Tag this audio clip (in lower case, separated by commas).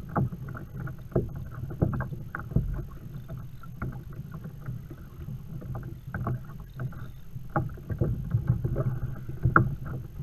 kayak rowing, rowboat